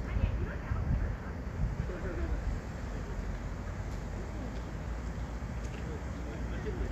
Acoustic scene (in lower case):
street